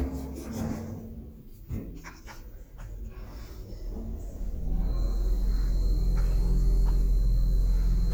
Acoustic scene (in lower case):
elevator